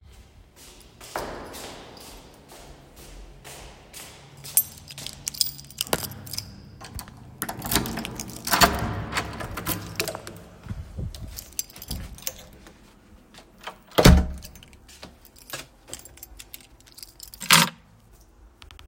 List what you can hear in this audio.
footsteps, keys, door